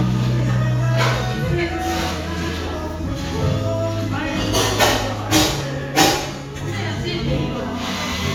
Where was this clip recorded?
in a cafe